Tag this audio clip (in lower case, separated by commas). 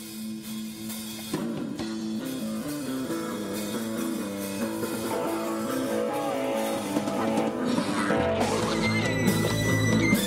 music, pop music, funk